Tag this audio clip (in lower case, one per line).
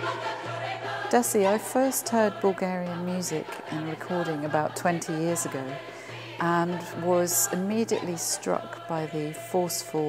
speech
music
choir
female singing